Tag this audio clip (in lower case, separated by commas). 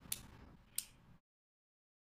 clock, mechanisms